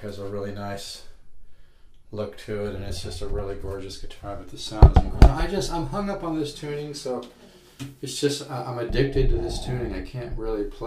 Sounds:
speech

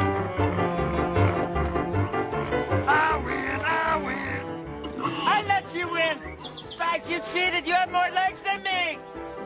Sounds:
speech, oink, music

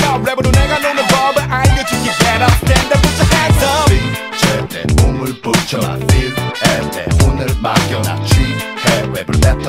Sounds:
tender music, music

